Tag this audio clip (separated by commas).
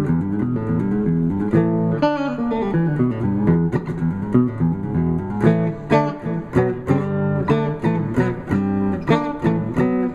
Guitar, Plucked string instrument, Electric guitar, Music, Musical instrument